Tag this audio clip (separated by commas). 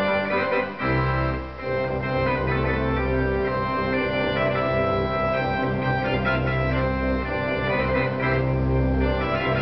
playing electronic organ